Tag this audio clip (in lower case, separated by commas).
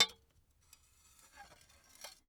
glass, domestic sounds, dishes, pots and pans